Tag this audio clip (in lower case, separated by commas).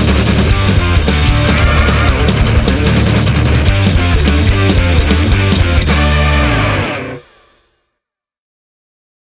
progressive rock, rock music, music